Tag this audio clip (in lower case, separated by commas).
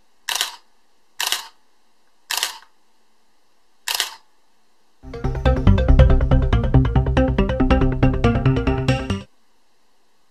music